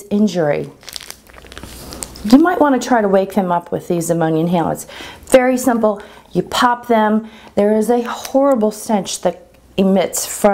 A woman speaking with faint crinkling plastic